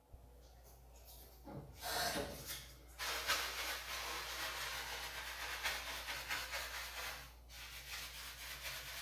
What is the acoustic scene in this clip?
restroom